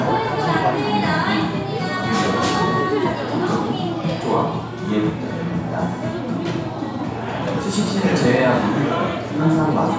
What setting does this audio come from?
crowded indoor space